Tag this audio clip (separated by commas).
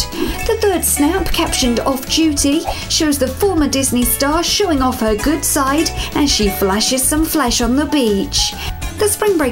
Music, Speech